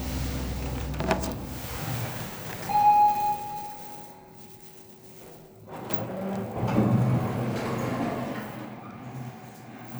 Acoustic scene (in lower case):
elevator